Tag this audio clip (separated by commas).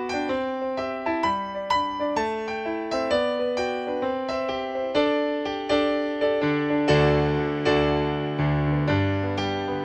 Music